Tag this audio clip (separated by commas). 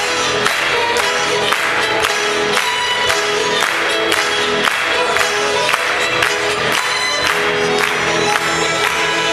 Music